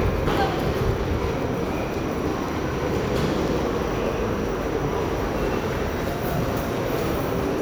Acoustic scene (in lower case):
subway station